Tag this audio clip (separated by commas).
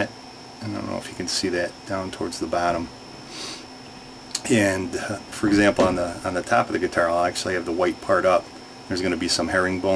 Speech